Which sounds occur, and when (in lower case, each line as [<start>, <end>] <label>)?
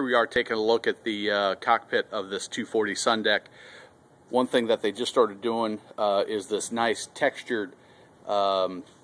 [0.00, 9.03] background noise
[0.01, 3.37] man speaking
[3.45, 3.84] breathing
[4.23, 5.75] man speaking
[5.93, 7.76] man speaking
[7.74, 8.06] breathing
[8.17, 8.81] man speaking
[9.01, 9.03] man speaking